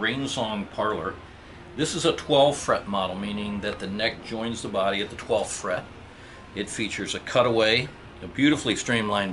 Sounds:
Speech

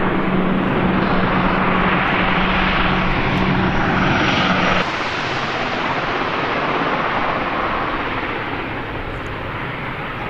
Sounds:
airplane flyby

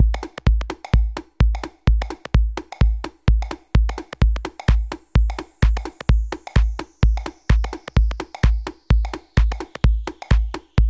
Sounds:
Techno, Electronic music, Music

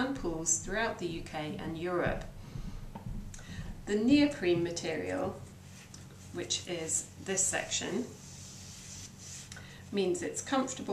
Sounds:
Speech

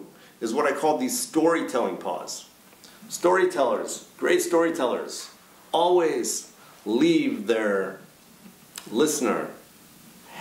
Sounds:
Speech

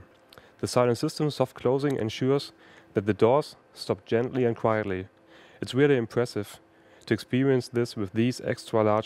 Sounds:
Speech

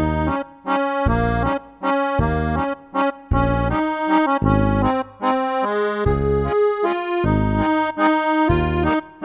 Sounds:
Music

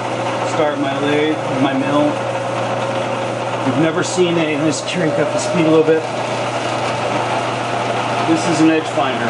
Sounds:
Speech, Tools

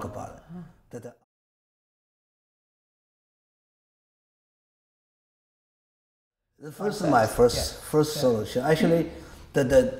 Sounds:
Speech

